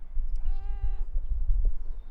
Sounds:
Meow, Cat, Animal, Domestic animals

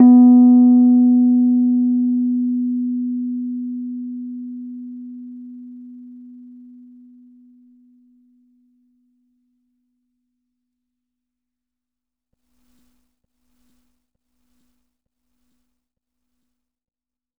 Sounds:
Music, Piano, Musical instrument, Keyboard (musical)

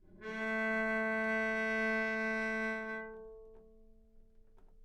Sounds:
Music, Musical instrument, Bowed string instrument

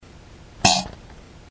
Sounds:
Fart

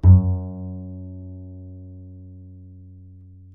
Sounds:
Musical instrument, Music, Bowed string instrument

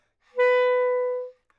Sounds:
Wind instrument, Music, Musical instrument

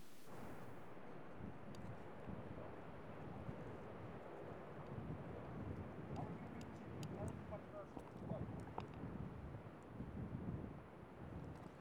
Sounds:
Wind

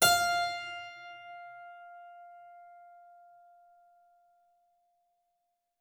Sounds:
Music, Musical instrument, Keyboard (musical)

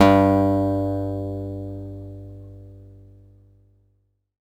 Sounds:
Music, Plucked string instrument, Guitar, Musical instrument, Acoustic guitar

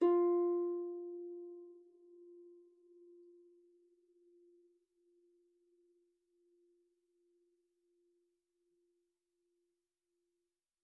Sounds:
Music, Musical instrument, Harp

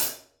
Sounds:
Cymbal, Hi-hat, Musical instrument, Percussion, Music

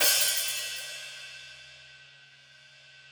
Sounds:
Cymbal, Musical instrument, Hi-hat, Percussion, Music

